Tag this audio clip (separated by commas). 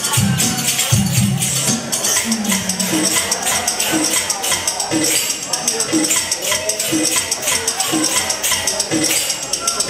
Drum, Music